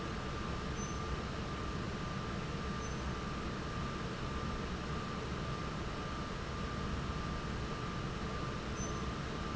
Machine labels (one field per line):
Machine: fan